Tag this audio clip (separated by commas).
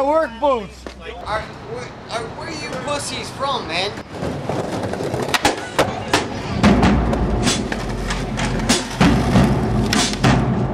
Speech, Music